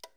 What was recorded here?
plastic switch being turned off